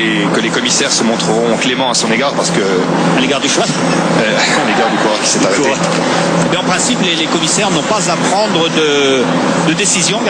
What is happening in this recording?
Man is talking in the background with some noise